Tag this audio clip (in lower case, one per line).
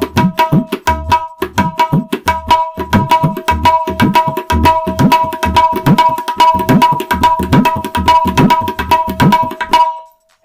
playing tabla